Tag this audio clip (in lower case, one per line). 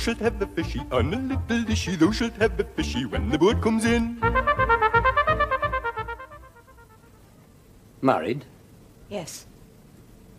speech
music